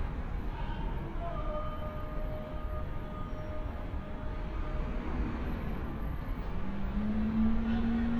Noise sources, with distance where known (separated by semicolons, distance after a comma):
engine of unclear size; unidentified human voice, far